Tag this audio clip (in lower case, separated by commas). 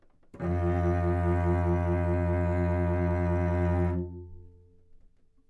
bowed string instrument, music, musical instrument